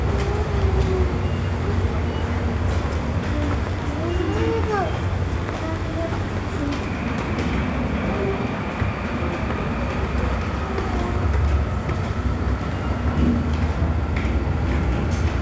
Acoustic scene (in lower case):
subway station